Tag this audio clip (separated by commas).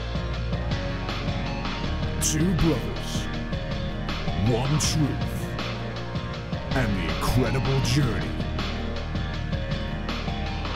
Speech, Music